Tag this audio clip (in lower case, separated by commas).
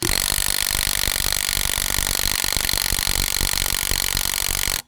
tools